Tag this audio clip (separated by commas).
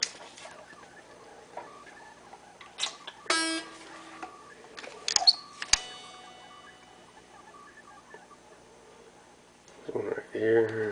Guitar, Music, Musical instrument, Plucked string instrument